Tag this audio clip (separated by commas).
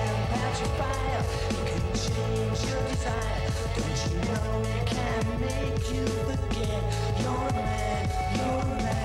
Music